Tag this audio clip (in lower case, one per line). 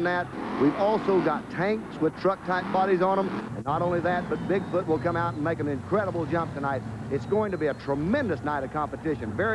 vehicle
truck
speech